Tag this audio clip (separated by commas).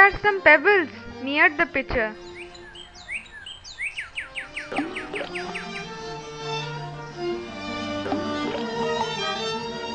Music, Speech, Bird, Bird vocalization